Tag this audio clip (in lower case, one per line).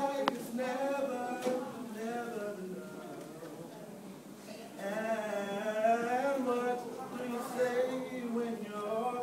male singing
speech